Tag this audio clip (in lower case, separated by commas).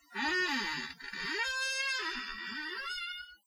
squeak